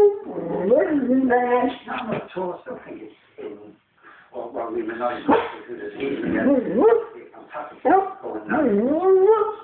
A dog is whining and barking, and an adult male is speaking